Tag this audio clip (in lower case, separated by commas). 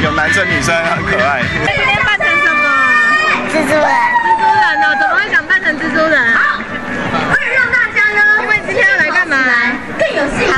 outside, urban or man-made, speech, music